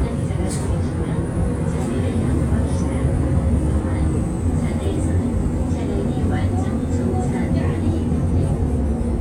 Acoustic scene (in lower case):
bus